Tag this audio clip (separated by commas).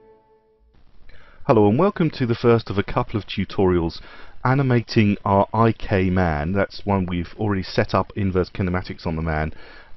Speech